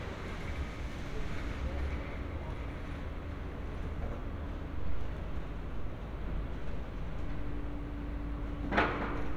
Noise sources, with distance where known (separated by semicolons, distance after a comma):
non-machinery impact